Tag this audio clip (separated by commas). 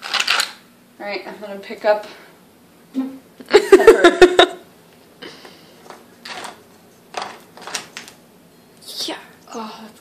Speech, woman speaking